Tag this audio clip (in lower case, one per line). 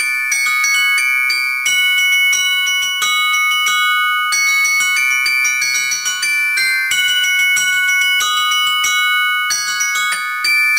playing glockenspiel